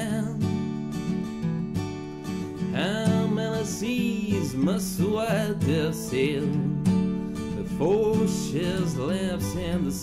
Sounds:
Music

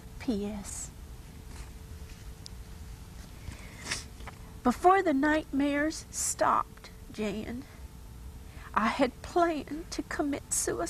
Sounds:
Speech

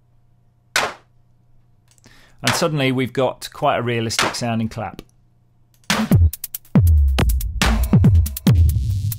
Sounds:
Synthesizer, Speech, Music, Drum machine

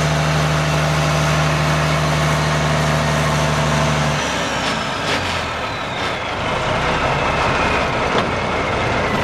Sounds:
Vehicle, Truck

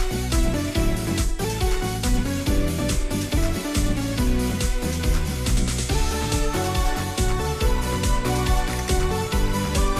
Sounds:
Music

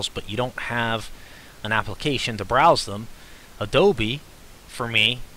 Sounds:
Speech

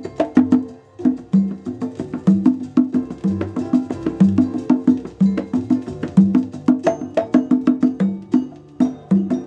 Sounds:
playing congas

